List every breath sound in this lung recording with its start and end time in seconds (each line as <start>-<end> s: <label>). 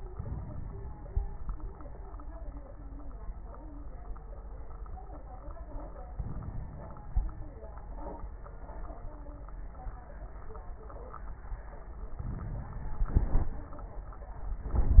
0.08-1.25 s: inhalation
0.08-1.25 s: crackles
6.18-7.65 s: inhalation
6.18-7.65 s: crackles
12.22-13.70 s: inhalation
12.22-13.70 s: crackles